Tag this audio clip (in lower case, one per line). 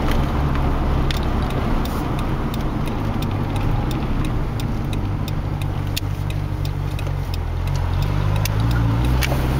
vehicle
car
outside, urban or man-made